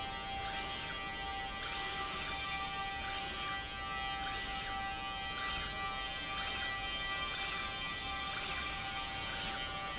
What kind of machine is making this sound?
slide rail